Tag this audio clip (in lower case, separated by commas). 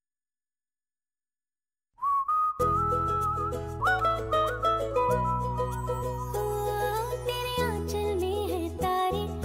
music for children, music